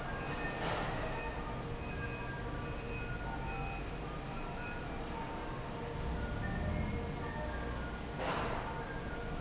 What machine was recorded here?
fan